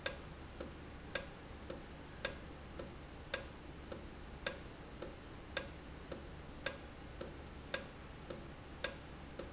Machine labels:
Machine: valve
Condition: normal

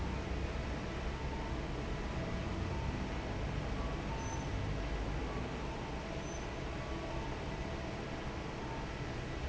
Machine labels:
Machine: fan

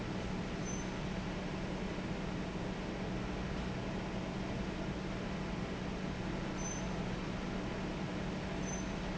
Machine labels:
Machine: fan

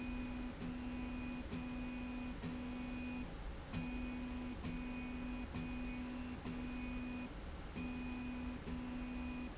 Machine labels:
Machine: slide rail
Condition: normal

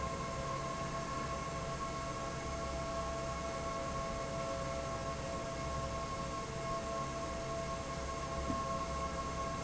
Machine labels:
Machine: fan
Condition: normal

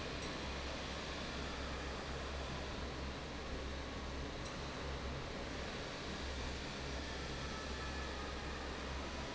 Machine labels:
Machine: fan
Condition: normal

